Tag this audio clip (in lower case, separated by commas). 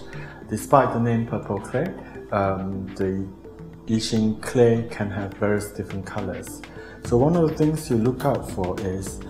speech, music